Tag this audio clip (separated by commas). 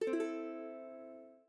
Musical instrument, Plucked string instrument, Music